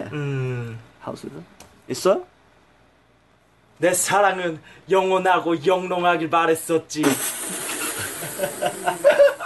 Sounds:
Speech

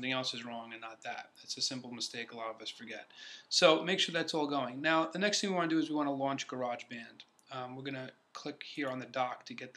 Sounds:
Speech

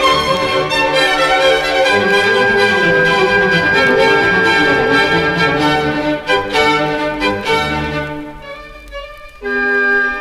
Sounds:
Musical instrument, Music, Violin

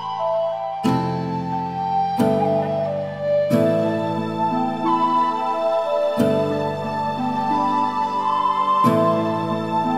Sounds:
Orchestra, Background music, Music

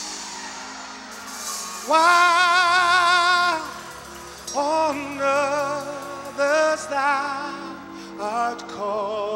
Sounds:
Music, Gospel music

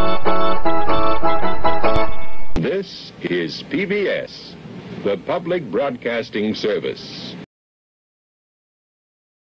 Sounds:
Speech, Television

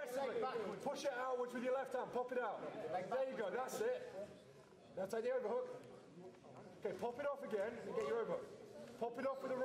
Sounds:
Speech

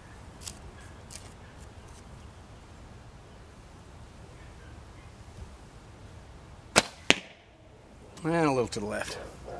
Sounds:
Arrow

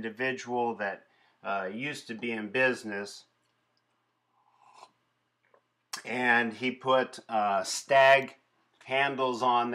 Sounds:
Speech

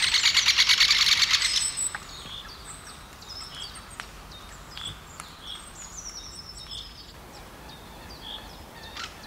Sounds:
woodpecker pecking tree

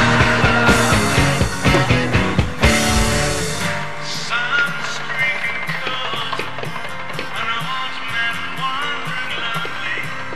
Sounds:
Grunge, Music

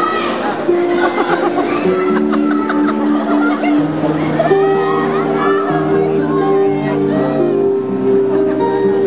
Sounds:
Speech, Music

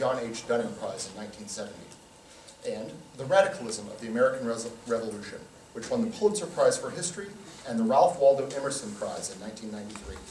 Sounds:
Speech

